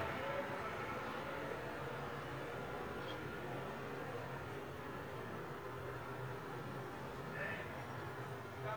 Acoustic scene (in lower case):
residential area